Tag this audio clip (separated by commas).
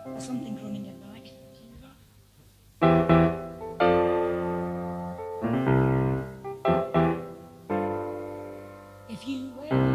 Speech, Music